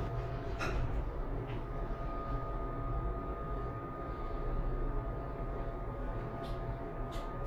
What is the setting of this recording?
elevator